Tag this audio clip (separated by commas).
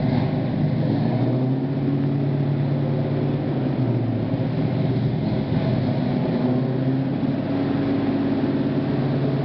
Truck, Vehicle